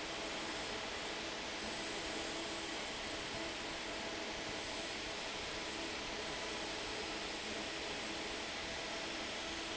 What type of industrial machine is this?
fan